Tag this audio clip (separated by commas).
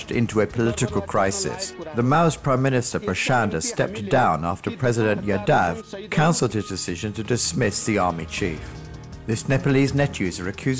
Music, Speech